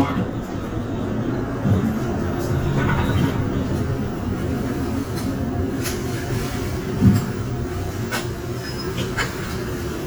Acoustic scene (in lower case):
bus